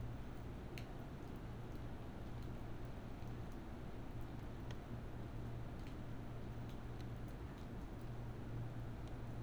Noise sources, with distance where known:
background noise

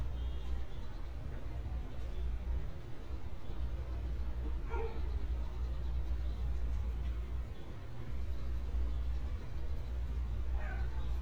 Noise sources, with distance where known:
dog barking or whining

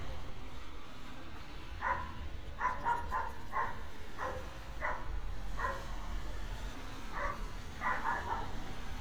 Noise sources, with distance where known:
dog barking or whining, near

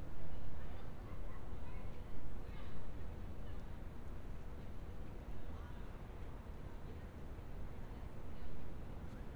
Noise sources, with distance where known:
person or small group talking, far

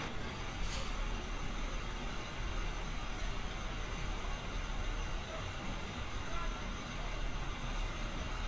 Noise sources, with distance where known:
engine of unclear size, near

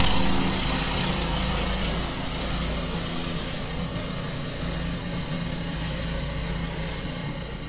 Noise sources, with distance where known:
engine of unclear size, near

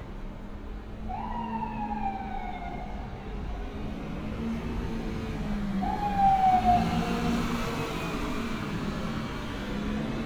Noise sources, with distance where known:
siren

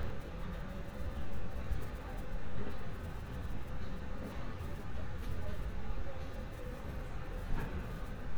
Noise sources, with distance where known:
person or small group talking

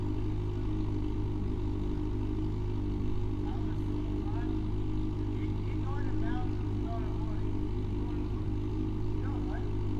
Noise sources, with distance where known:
engine of unclear size, near; unidentified human voice, near

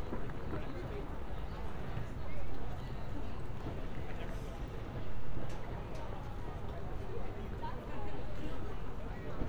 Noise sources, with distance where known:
person or small group talking

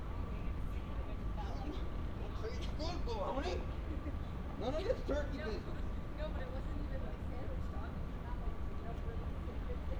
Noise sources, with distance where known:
person or small group talking, near

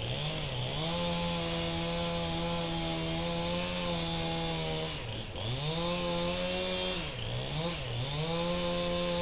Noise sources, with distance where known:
chainsaw

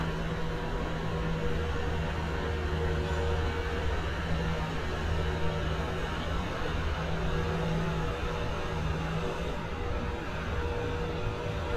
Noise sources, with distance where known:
engine of unclear size, near

